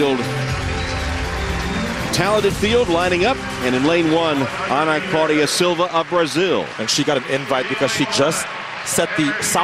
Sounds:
Speech, Music, outside, urban or man-made

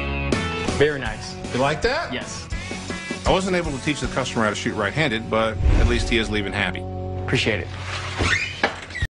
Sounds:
Music, Speech

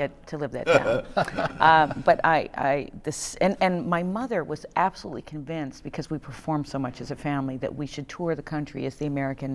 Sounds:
Speech

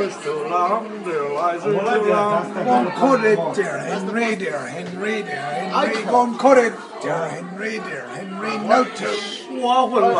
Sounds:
Male singing, Speech

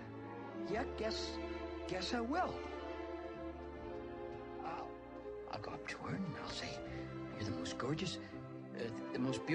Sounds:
Speech, Music

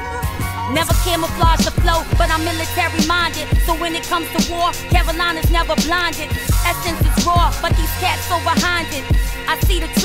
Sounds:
Music

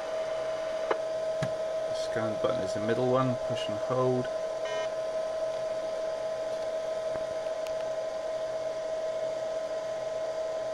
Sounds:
Radio, Speech

